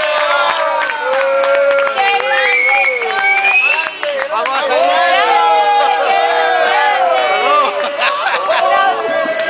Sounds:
speech, male speech, chatter, crowd

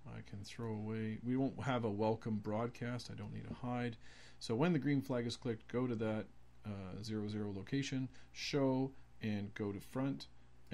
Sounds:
speech

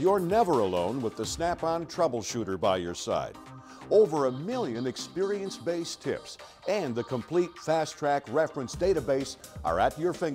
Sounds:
music, speech

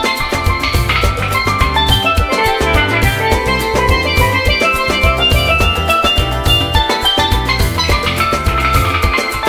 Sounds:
playing steelpan

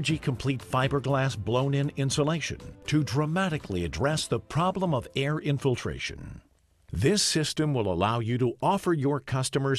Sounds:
music, speech

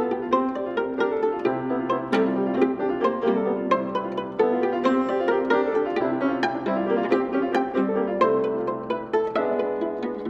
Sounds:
fiddle, music, bowed string instrument, musical instrument, piano, cello

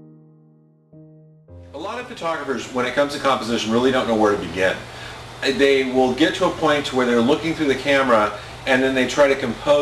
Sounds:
music, speech

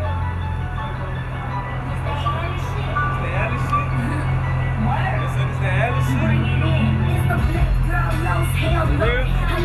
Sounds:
musical instrument, speech, music

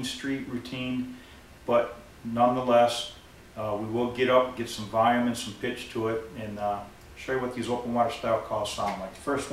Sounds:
speech

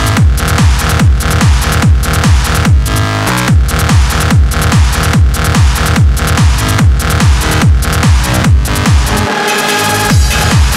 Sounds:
music

